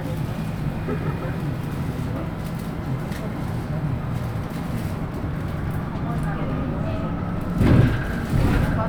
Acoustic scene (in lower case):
bus